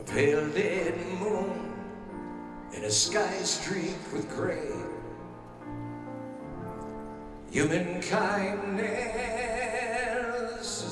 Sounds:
Music

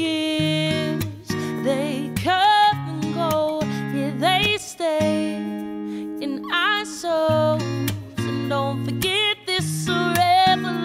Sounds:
Music

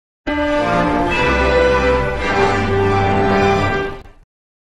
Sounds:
Music

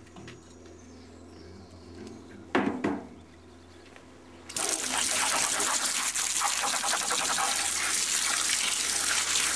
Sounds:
Water

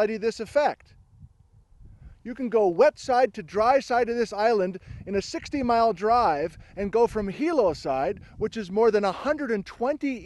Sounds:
Speech

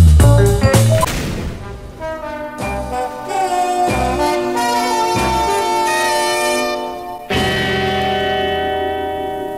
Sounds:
Music, Speech

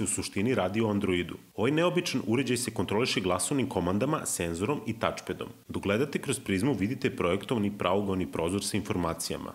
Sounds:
Speech

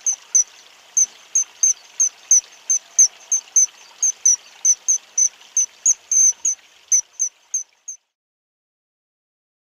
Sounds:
bird song, Bird

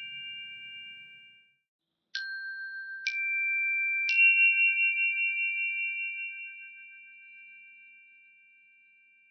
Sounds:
Chime

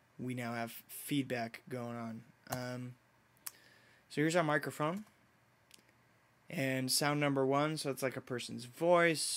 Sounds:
Speech

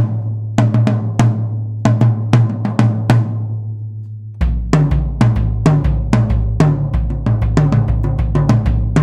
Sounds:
playing snare drum, Drum, Bass drum, Percussion, Snare drum

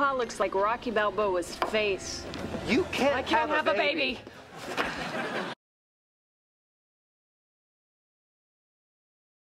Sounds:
Speech

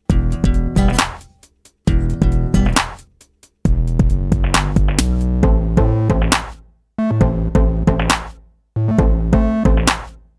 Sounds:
Music, Drum machine, Synthesizer

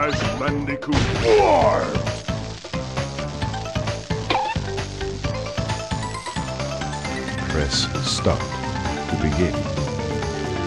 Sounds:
Speech, Music

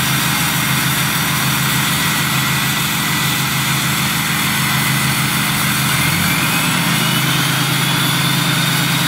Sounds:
Heavy engine (low frequency)

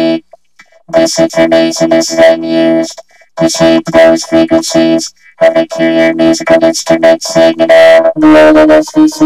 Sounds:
Synthesizer, Speech

